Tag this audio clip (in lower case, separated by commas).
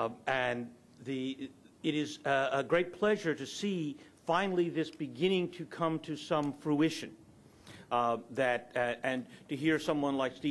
male speech, speech